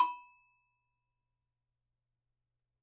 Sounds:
Percussion, Bell, Music, Musical instrument

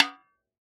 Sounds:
Snare drum, Musical instrument, Drum, Percussion, Music

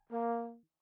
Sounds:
Brass instrument, Musical instrument, Music

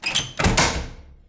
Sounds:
Slam, Door, Domestic sounds

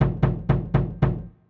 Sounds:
Door, Domestic sounds, Knock

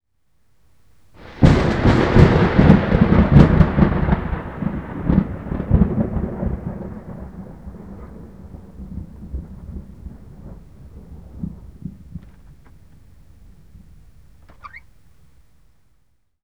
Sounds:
Thunder, Thunderstorm

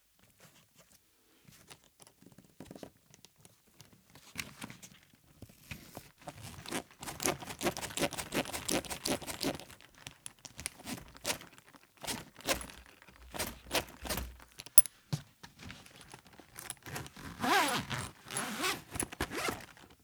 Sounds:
Domestic sounds, Zipper (clothing)

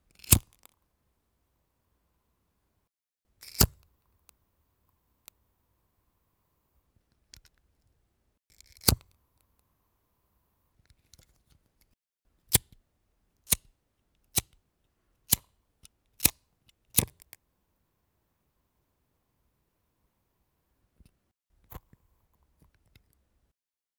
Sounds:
Fire

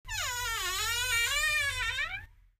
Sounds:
Squeak

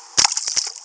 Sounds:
Splash, Liquid

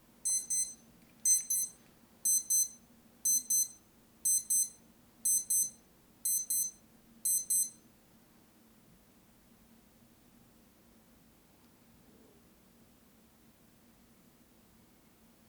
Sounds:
Alarm

